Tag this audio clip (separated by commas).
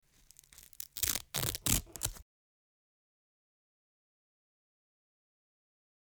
home sounds